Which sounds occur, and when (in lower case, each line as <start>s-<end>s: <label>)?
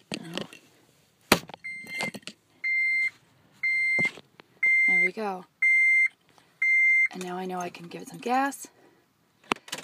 0.0s-9.8s: background noise
0.0s-0.5s: generic impact sounds
0.1s-0.4s: female speech
1.2s-1.5s: generic impact sounds
1.6s-2.1s: bleep
1.8s-2.3s: generic impact sounds
2.6s-3.1s: bleep
3.5s-4.0s: bleep
3.9s-4.2s: generic impact sounds
4.3s-4.6s: generic impact sounds
4.6s-5.0s: bleep
4.8s-5.5s: female speech
5.6s-6.1s: bleep
6.2s-6.4s: generic impact sounds
6.6s-7.1s: bleep
6.8s-7.0s: generic impact sounds
7.0s-8.3s: keys jangling
7.0s-8.6s: female speech
8.6s-9.1s: breathing
9.3s-9.7s: breathing
9.4s-9.8s: generic impact sounds